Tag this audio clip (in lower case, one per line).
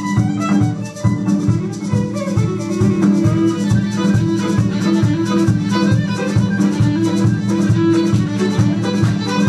playing violin
music
musical instrument
fiddle